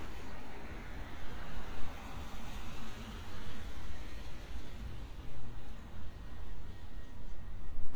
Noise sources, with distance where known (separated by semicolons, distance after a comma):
engine of unclear size